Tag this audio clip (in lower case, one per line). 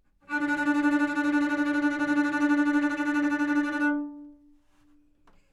musical instrument
bowed string instrument
music